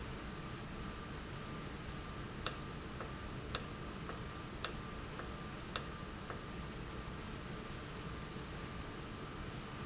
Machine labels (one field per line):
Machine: valve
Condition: normal